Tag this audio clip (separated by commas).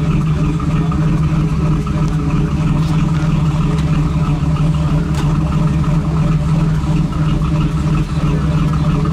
Speech